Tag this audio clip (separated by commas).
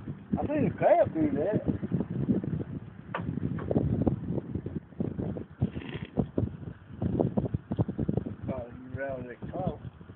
Speech